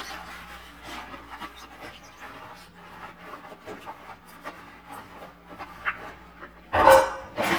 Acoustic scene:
kitchen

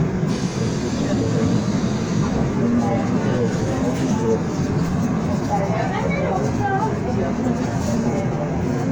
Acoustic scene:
subway train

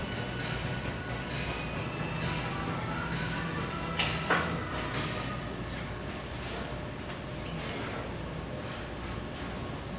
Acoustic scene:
crowded indoor space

